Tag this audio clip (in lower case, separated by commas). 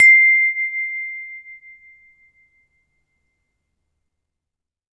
chime, bell, wind chime